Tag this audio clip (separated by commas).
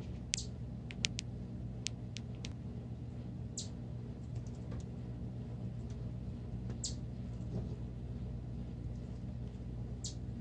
chipmunk chirping